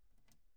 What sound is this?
wooden cupboard opening